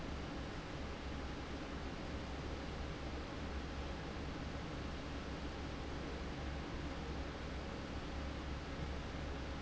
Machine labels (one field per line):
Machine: fan